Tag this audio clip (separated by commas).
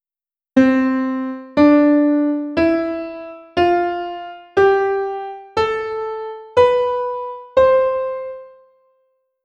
Piano, Musical instrument, Keyboard (musical), Music